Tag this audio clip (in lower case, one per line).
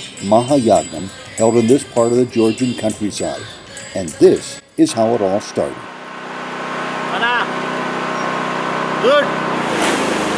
music
speech
outside, rural or natural